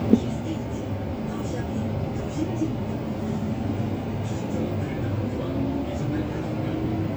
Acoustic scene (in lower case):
bus